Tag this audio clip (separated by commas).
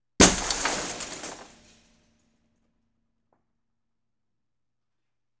Shatter, Glass